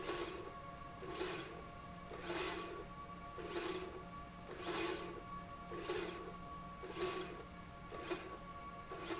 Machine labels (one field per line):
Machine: slide rail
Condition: normal